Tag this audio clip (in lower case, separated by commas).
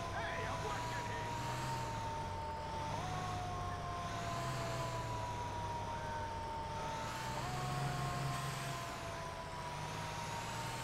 speech